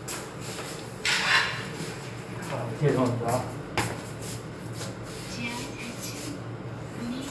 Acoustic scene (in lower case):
elevator